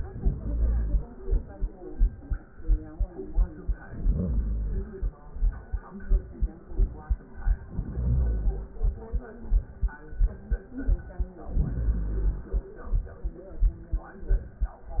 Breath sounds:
0.00-1.08 s: inhalation
3.79-5.14 s: inhalation
7.67-9.13 s: inhalation
11.41-12.87 s: inhalation

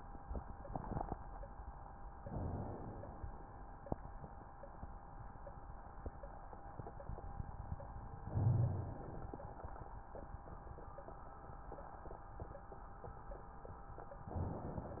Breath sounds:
2.21-3.42 s: inhalation
8.25-9.46 s: inhalation
14.31-15.00 s: inhalation

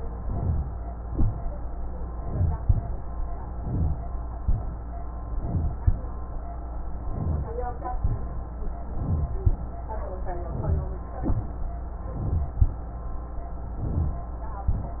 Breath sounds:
0.11-1.10 s: inhalation
1.08-1.36 s: wheeze
1.10-1.59 s: exhalation
2.11-3.00 s: inhalation
3.47-4.36 s: inhalation
4.36-4.88 s: exhalation
5.31-6.13 s: inhalation
6.92-7.84 s: inhalation
8.01-8.43 s: exhalation
8.88-9.64 s: inhalation
10.28-11.03 s: inhalation
11.27-11.66 s: exhalation
12.05-12.61 s: inhalation
13.66-14.35 s: inhalation
14.70-15.00 s: exhalation

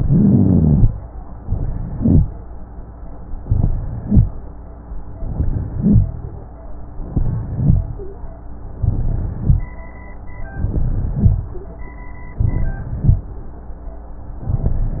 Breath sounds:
0.00-0.86 s: inhalation
0.00-0.86 s: rhonchi
1.40-2.26 s: inhalation
1.92-2.26 s: rhonchi
3.42-4.27 s: inhalation
3.96-4.31 s: rhonchi
5.20-6.05 s: inhalation
5.75-6.09 s: rhonchi
7.08-7.93 s: inhalation
7.46-7.91 s: rhonchi
8.80-9.66 s: inhalation
9.28-9.73 s: rhonchi
10.62-11.48 s: inhalation
11.04-11.50 s: rhonchi
12.39-13.24 s: inhalation
12.98-13.24 s: rhonchi

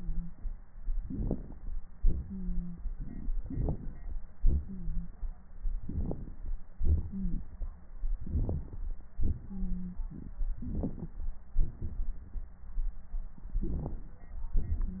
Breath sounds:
0.99-1.75 s: inhalation
0.99-1.75 s: crackles
1.97-2.87 s: exhalation
2.28-2.82 s: wheeze
3.45-4.12 s: inhalation
3.45-4.12 s: crackles
4.42-5.31 s: exhalation
4.67-5.09 s: wheeze
5.82-6.51 s: inhalation
5.82-6.51 s: crackles
6.79-7.46 s: exhalation
7.11-7.36 s: wheeze
8.22-8.88 s: inhalation
8.22-8.88 s: crackles
9.17-10.39 s: exhalation
9.48-9.97 s: wheeze
10.62-11.24 s: inhalation
10.62-11.24 s: crackles
11.55-12.49 s: exhalation
13.44-14.28 s: inhalation
13.44-14.28 s: crackles

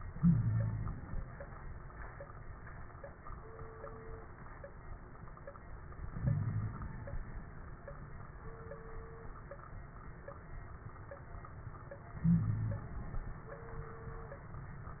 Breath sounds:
0.00-1.19 s: inhalation
0.14-0.94 s: wheeze
6.05-7.01 s: inhalation
6.24-6.78 s: wheeze
12.14-13.26 s: inhalation
12.23-12.89 s: wheeze

